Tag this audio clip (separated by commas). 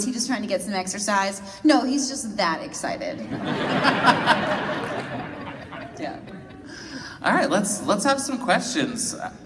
Speech